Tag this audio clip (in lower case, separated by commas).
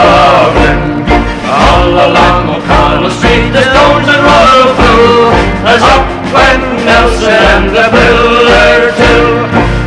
music